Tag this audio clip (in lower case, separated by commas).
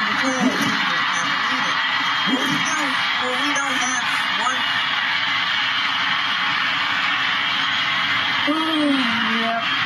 speech